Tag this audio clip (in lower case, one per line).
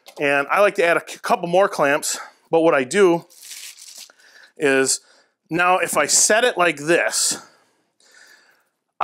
planing timber